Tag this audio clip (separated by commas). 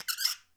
Squeak